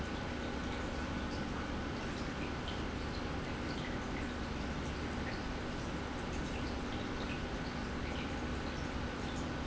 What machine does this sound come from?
pump